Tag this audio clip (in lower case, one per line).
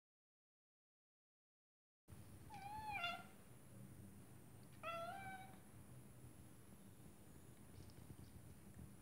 cat meowing